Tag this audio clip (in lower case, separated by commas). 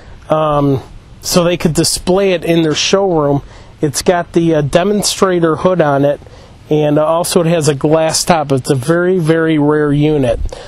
speech